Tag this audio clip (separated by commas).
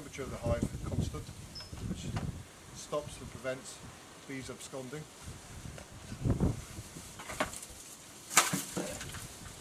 Speech